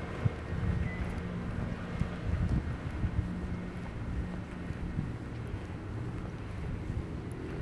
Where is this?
in a residential area